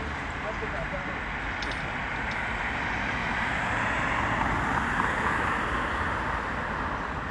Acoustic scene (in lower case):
residential area